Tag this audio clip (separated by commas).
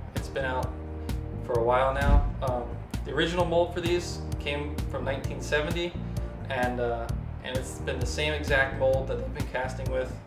Music, Speech